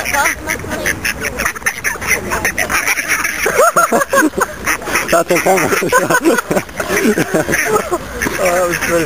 Ducks quacking followed by people laughing and talking